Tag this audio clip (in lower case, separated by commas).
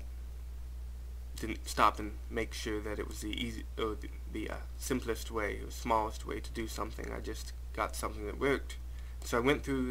speech